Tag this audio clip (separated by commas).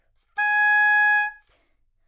Music, Musical instrument, Wind instrument